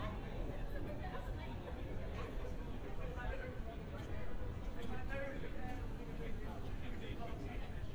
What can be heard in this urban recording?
car horn, person or small group talking